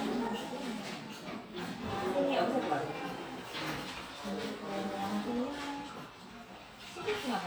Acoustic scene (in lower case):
crowded indoor space